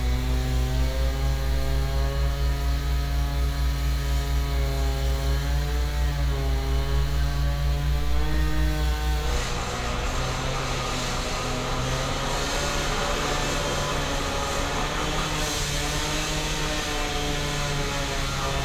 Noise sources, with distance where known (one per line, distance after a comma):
unidentified powered saw, near